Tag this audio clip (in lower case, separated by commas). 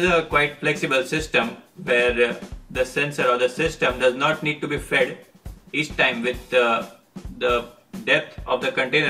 speech, music